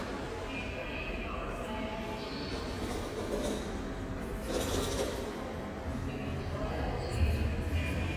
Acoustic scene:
subway station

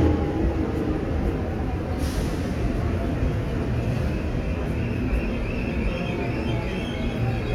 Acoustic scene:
subway station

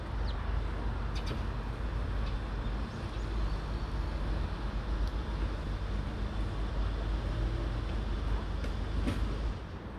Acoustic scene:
residential area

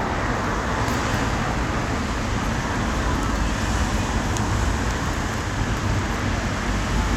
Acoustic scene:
street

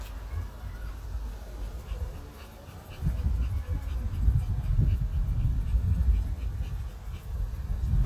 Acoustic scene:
residential area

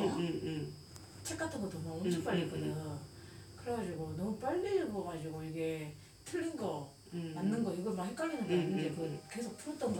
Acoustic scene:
elevator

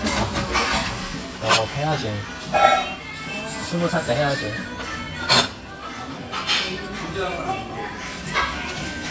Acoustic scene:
restaurant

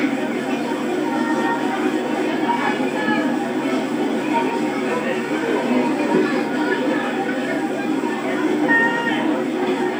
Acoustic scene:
park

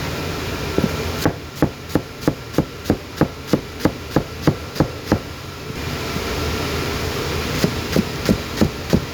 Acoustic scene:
kitchen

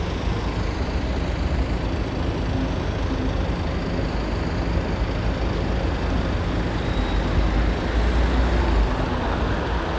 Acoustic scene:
street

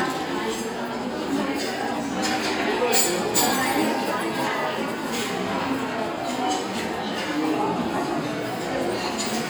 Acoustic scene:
restaurant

